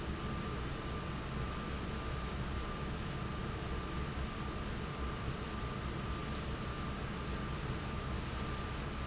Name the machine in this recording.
fan